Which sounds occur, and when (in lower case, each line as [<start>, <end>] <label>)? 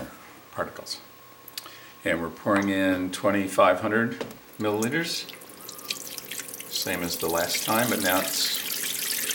[0.00, 9.34] mechanisms
[0.50, 0.99] man speaking
[1.54, 1.58] tick
[1.60, 1.97] breathing
[2.01, 2.37] man speaking
[2.46, 4.17] man speaking
[2.53, 2.58] tick
[4.19, 4.27] tick
[4.56, 4.66] tick
[4.58, 5.24] man speaking
[4.78, 4.84] tick
[5.23, 9.34] pour
[6.70, 8.60] man speaking